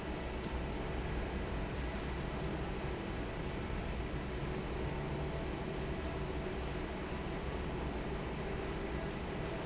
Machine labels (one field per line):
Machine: fan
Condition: normal